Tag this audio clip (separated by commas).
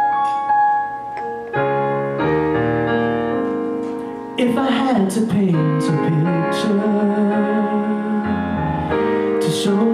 Male singing, Music